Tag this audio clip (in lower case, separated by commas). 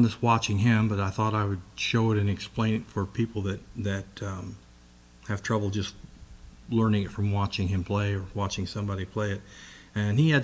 speech